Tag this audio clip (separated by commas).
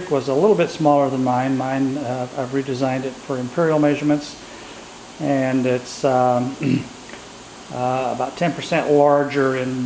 Speech